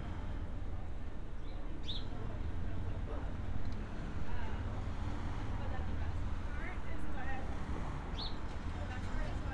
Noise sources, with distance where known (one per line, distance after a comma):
person or small group talking, near